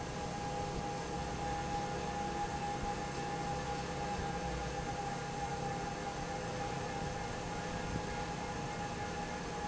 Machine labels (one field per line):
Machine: fan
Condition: normal